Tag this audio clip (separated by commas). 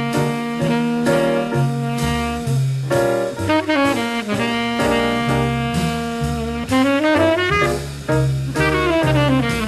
Music, Saxophone